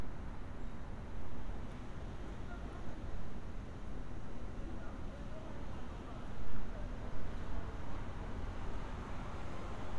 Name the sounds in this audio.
person or small group talking